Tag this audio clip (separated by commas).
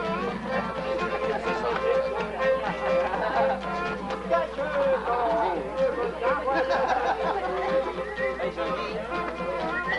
Music, Violin, Musical instrument, Speech